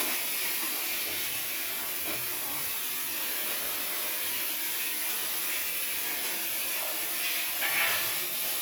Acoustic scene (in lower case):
restroom